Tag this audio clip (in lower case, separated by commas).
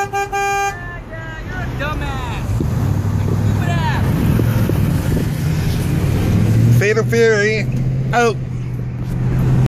speech, vehicle